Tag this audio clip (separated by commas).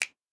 Finger snapping, Hands